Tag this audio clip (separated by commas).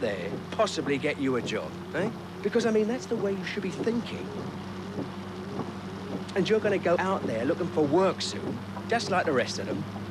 Speech